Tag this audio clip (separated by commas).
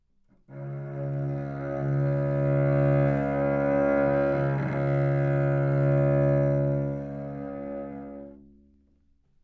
Musical instrument, Music, Bowed string instrument